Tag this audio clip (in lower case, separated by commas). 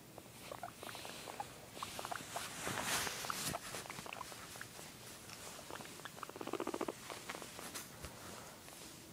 patter, rats